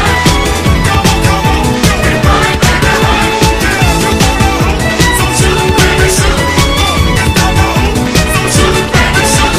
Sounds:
Music, Soundtrack music

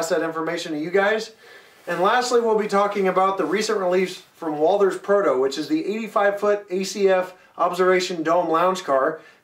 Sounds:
Speech

